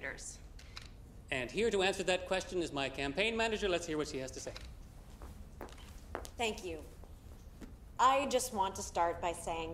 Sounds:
inside a large room or hall, speech, woman speaking

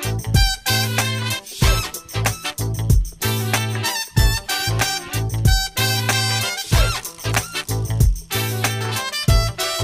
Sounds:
swing music, music

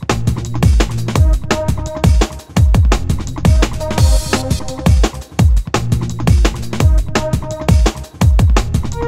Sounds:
music

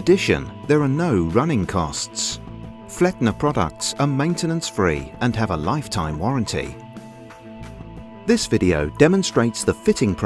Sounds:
music, speech

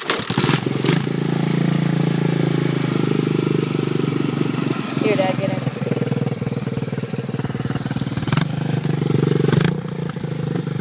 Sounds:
speech

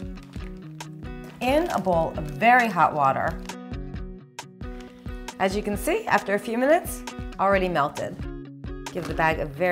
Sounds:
music, speech

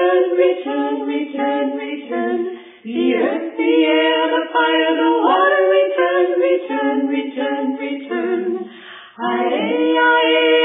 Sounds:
choir, female singing

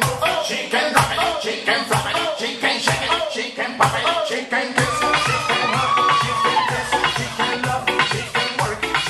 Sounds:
music

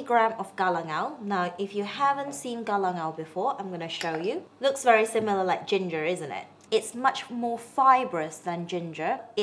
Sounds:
speech

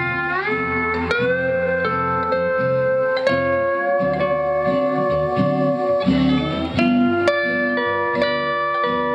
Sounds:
music, plucked string instrument, guitar, musical instrument

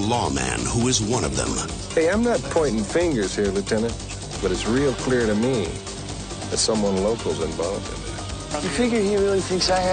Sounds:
speech, music

